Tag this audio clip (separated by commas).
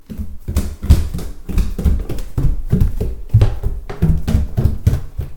Run